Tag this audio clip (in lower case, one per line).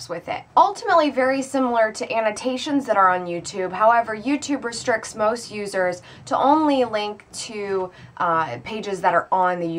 speech